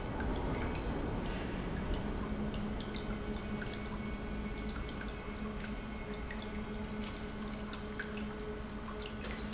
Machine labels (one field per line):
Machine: pump